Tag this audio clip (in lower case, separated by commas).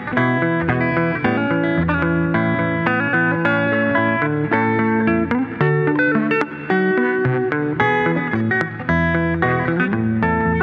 plucked string instrument, guitar, musical instrument, music